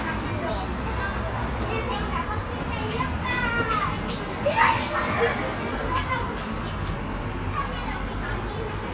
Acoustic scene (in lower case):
park